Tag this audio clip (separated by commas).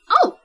Human voice, Speech, woman speaking